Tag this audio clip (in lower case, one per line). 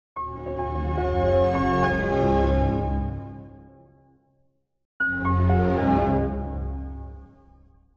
music